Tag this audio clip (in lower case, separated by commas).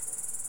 animal, insect, cricket, wild animals